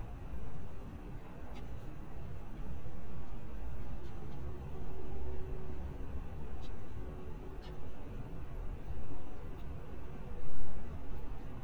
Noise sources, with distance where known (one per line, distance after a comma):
engine of unclear size, far